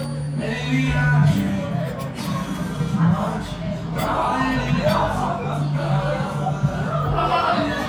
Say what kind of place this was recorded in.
cafe